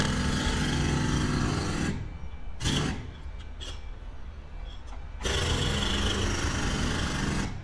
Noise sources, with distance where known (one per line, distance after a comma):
jackhammer, near